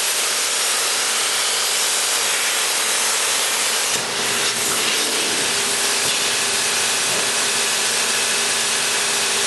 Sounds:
Power tool, Tools

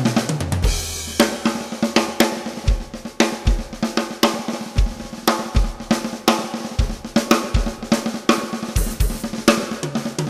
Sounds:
Percussion, Hi-hat, Music, Drum kit, Cymbal, Musical instrument, Drum, Snare drum

